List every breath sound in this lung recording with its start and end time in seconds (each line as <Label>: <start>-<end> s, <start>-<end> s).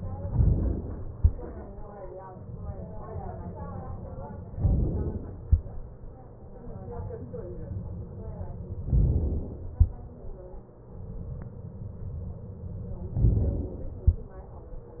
Inhalation: 0.26-1.16 s, 4.56-5.37 s, 8.88-9.72 s, 13.14-13.99 s